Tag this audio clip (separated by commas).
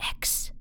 Speech, Whispering, Female speech, Human voice